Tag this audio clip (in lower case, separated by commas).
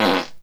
fart